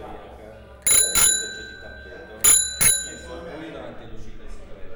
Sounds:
Bicycle, Alarm, Vehicle, Bell, Bicycle bell

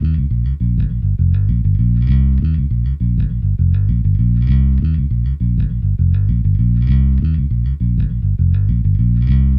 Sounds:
Guitar, Plucked string instrument, Musical instrument, Bass guitar, Music

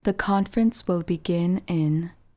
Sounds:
Speech, Human voice, Female speech

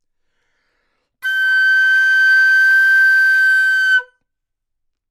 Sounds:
Music, woodwind instrument, Musical instrument

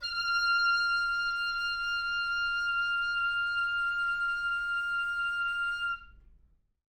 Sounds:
Music, Wind instrument, Musical instrument

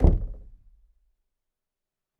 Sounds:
Knock, Wood, Domestic sounds, Door

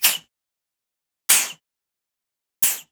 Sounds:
Hiss

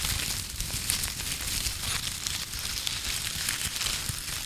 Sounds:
Crumpling

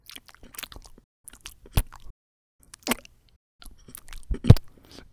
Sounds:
mastication

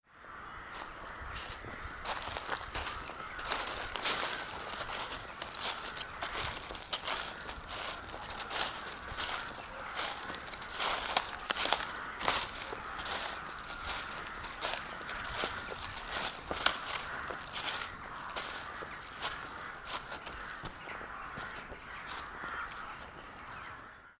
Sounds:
Animal, Wild animals, Crow, Bird

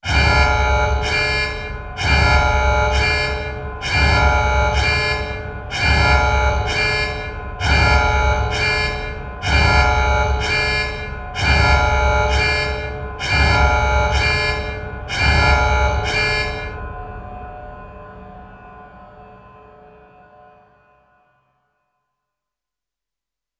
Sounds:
Alarm

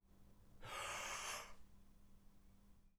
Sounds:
Respiratory sounds, Breathing

